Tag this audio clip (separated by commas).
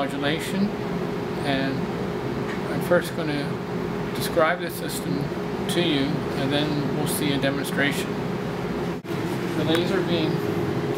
Speech